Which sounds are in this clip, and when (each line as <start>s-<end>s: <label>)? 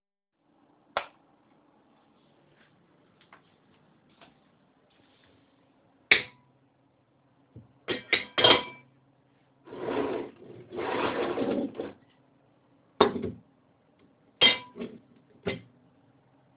0.8s-1.2s: light switch
2.4s-5.5s: footsteps
6.0s-6.4s: cutlery and dishes
7.8s-8.8s: cutlery and dishes
9.6s-12.1s: wardrobe or drawer
12.9s-13.5s: cutlery and dishes
14.3s-15.7s: cutlery and dishes